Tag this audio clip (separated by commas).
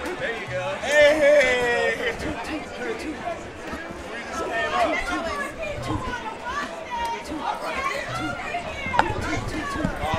Speech